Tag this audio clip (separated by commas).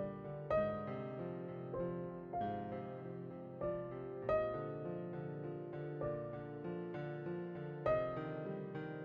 Keyboard (musical), Piano